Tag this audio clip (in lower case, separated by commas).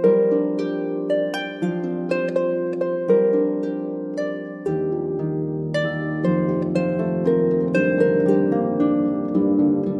harp, musical instrument, music, playing harp, plucked string instrument